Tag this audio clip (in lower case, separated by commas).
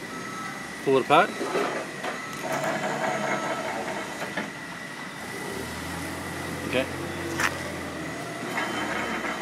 inside a large room or hall, speech